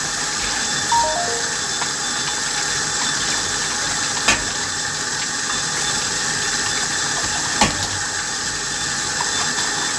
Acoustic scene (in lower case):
kitchen